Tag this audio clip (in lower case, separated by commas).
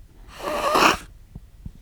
respiratory sounds